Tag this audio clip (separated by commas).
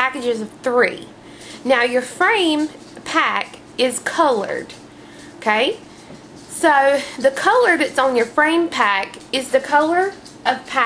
Speech